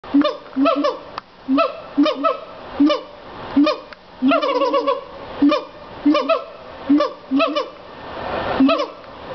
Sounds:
animal

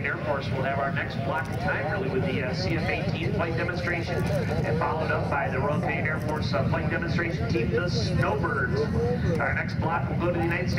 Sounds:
airplane flyby

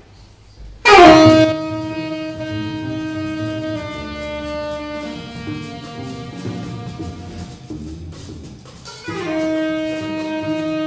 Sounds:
music
percussion

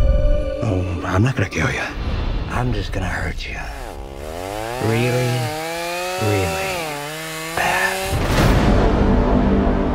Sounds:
chainsaw

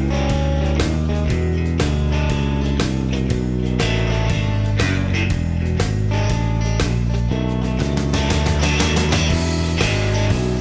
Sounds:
music

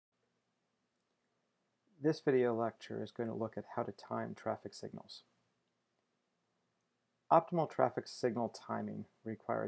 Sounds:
speech

